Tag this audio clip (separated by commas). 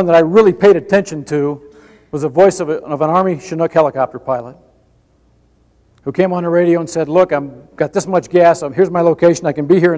man speaking, Narration, Speech